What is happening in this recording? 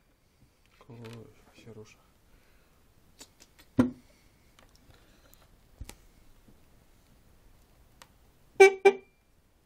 People talk nearby quietly, and then a car horn honks at moderate volume